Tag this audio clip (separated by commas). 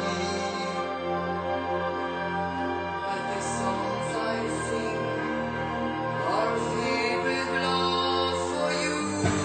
Music